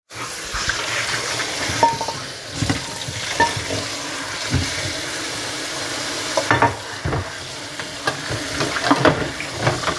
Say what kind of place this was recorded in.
kitchen